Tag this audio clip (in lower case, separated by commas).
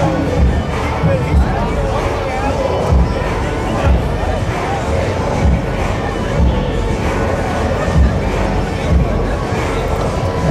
speech, music